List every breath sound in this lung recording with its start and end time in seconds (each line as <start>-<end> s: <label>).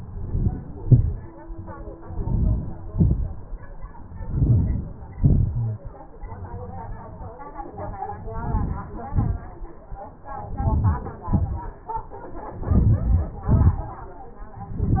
0.00-0.58 s: inhalation
0.78-1.21 s: exhalation
2.15-2.74 s: inhalation
2.95-3.29 s: exhalation
4.30-4.97 s: inhalation
5.14-5.53 s: exhalation
8.44-8.92 s: inhalation
9.15-9.47 s: exhalation
10.61-11.18 s: inhalation
11.30-11.75 s: exhalation
12.68-13.35 s: inhalation
13.50-13.91 s: exhalation